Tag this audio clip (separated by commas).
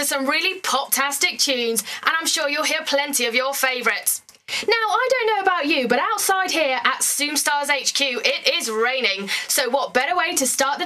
Speech